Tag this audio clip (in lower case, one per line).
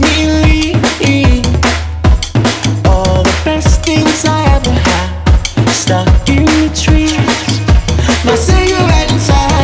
music